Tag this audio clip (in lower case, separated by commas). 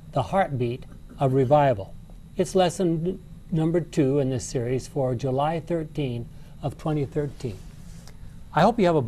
speech